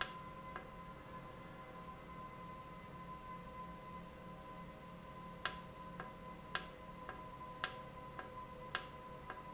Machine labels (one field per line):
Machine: valve